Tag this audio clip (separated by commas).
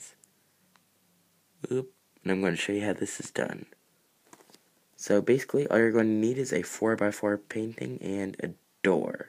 Speech